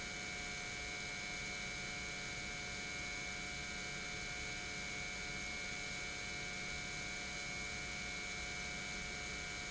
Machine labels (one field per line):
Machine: pump